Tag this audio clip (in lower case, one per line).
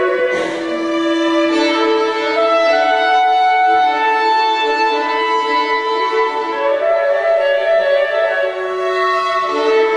violin
bowed string instrument